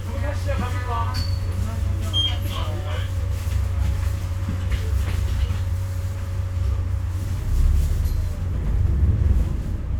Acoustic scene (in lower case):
bus